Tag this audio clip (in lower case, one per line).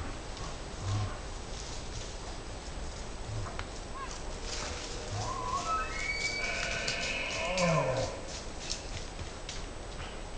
elk bugling